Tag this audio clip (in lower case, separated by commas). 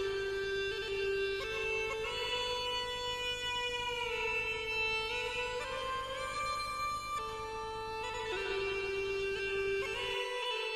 music